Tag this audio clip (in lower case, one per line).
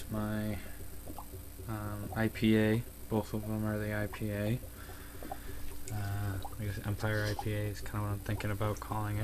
speech